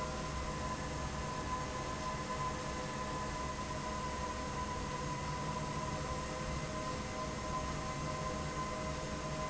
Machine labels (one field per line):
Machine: fan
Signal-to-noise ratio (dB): -6 dB